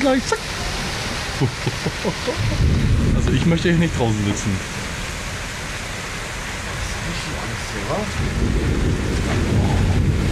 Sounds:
Thunderstorm, Thunder, Rain

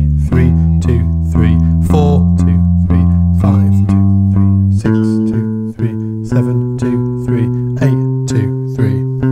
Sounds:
playing bass guitar

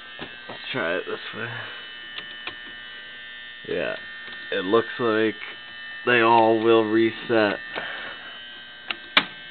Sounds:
Speech

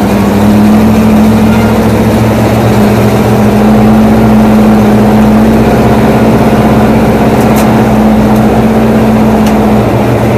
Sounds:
Vehicle, Car

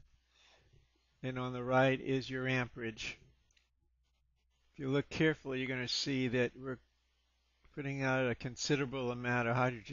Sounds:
Speech

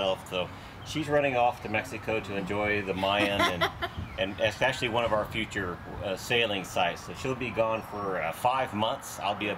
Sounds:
Speech

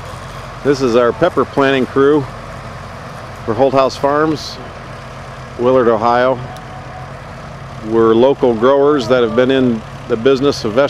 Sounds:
Speech

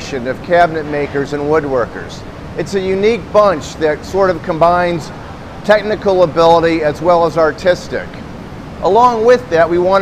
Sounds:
Speech

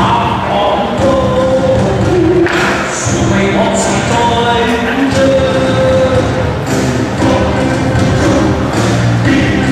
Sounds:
Crowd

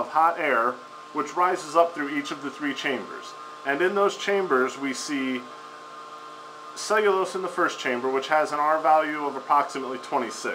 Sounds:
Speech

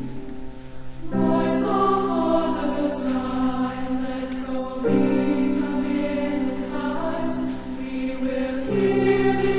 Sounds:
Music, Choir

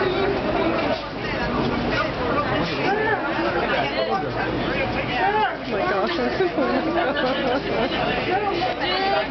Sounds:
Speech

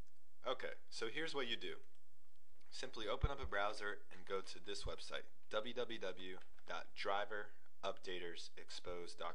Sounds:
Speech

